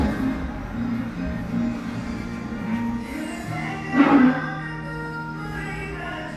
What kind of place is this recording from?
cafe